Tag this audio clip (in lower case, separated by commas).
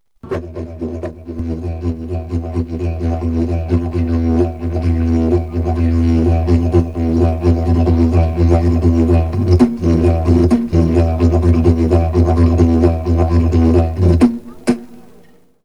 music, musical instrument